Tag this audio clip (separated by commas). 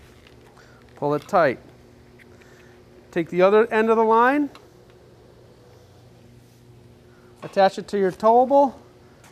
Speech